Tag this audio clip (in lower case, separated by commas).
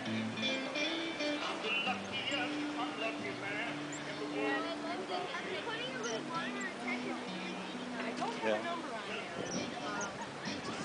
music, speech